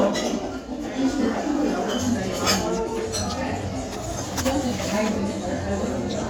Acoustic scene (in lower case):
restaurant